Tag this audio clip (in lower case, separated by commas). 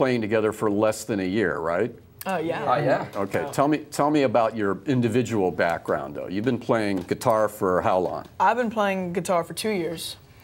speech